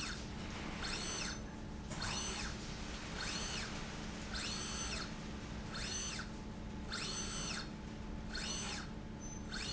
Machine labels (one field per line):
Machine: slide rail